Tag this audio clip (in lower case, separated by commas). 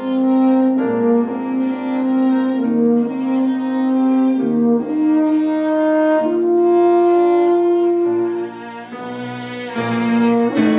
music, musical instrument, fiddle